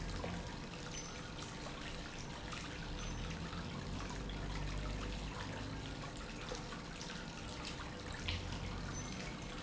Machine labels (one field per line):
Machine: pump